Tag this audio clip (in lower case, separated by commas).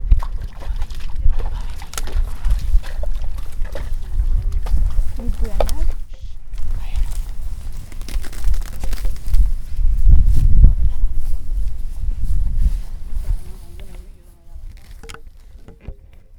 wind